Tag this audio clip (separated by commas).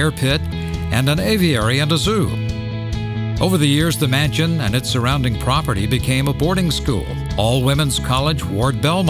Speech, Music